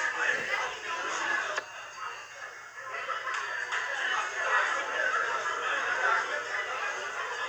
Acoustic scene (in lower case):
crowded indoor space